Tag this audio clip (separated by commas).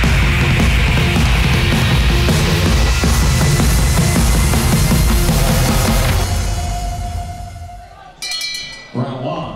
Speech, Music